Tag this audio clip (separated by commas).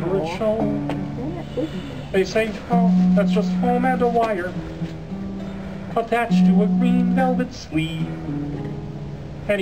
Music, Speech